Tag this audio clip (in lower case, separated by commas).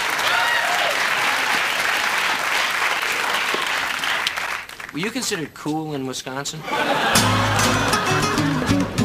music, speech